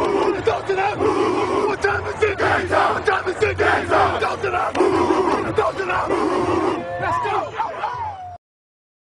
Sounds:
Speech

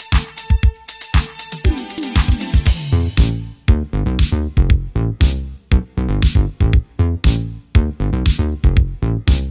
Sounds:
Music, Funk, Jazz

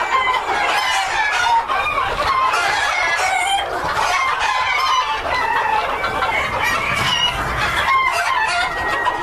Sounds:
rooster

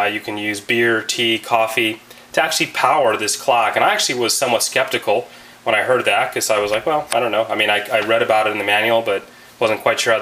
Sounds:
Speech

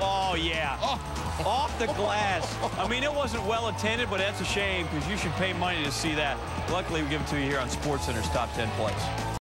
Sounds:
Speech, Music

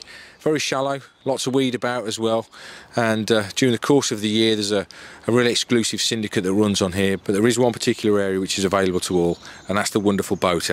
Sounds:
Speech

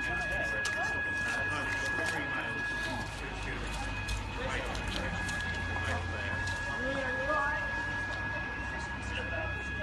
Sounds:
Speech

